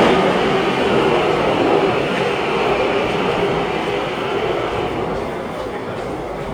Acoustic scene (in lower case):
subway station